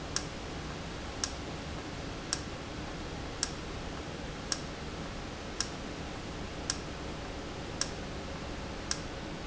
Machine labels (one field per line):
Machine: valve